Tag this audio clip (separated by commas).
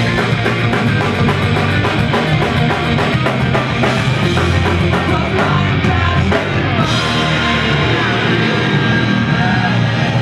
Music, Singing